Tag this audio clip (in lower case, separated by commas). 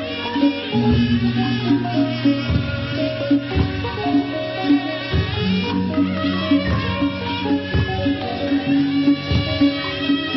music